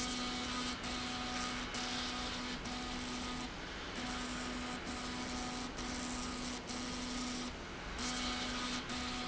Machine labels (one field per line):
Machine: slide rail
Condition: abnormal